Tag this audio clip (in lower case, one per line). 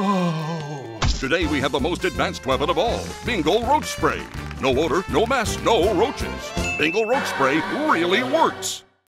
music
speech